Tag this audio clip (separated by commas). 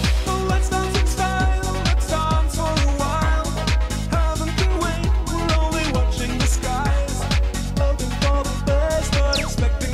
Exciting music, Music